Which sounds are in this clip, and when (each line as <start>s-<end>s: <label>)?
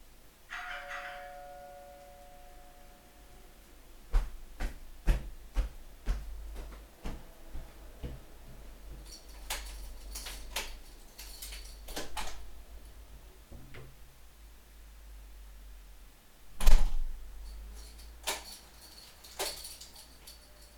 0.5s-3.7s: bell ringing
3.8s-9.2s: footsteps
9.2s-12.8s: keys
11.8s-12.6s: door
16.4s-17.3s: door
18.1s-20.8s: keys